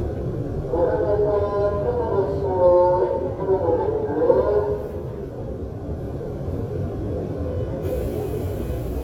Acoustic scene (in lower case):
subway train